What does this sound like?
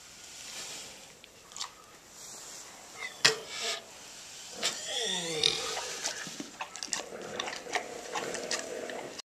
Pig is oinking and eating